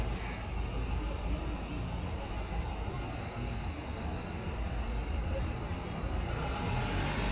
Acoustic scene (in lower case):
street